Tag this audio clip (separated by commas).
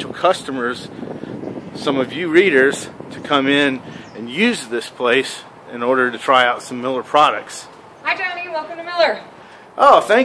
Speech